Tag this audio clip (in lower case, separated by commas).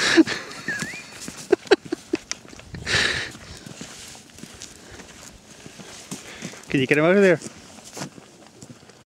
speech